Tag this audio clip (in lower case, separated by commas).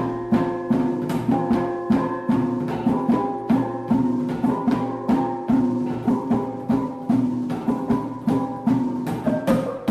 music